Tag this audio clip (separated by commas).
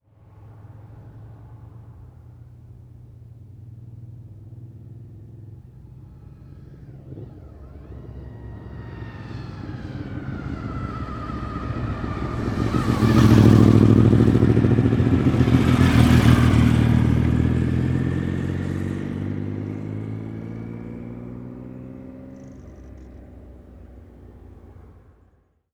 Vehicle, Motor vehicle (road), Motorcycle